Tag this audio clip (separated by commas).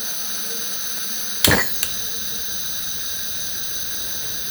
Fire